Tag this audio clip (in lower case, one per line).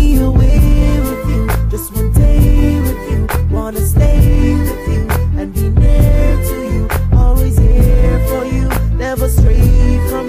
music
reggae